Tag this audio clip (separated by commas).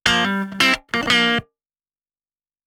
Electric guitar, Guitar, Music, Plucked string instrument, Musical instrument